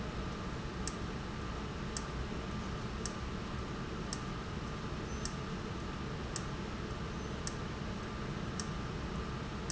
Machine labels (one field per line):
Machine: valve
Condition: abnormal